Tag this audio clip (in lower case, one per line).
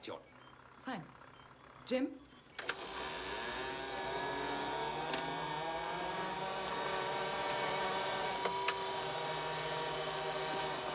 speech